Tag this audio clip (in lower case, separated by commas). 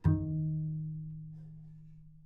music, musical instrument, bowed string instrument